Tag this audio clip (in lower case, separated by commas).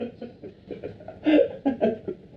laughter, human voice